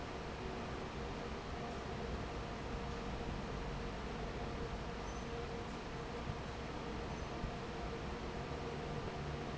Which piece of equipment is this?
fan